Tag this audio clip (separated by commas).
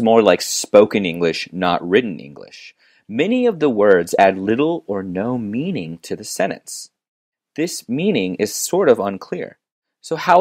Speech